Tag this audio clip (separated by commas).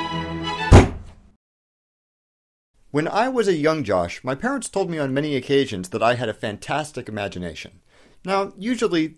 Music, Speech, inside a small room, Thunk